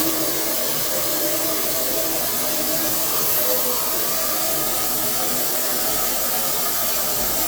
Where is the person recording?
in a kitchen